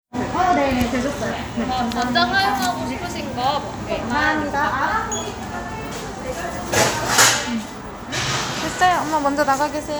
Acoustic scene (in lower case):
crowded indoor space